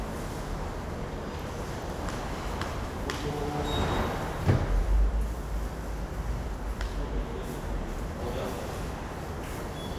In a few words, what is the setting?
subway station